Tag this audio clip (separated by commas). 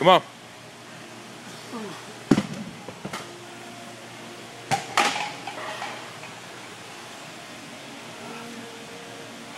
Music, Speech